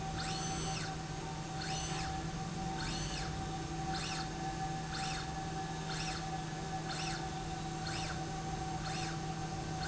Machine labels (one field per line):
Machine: slide rail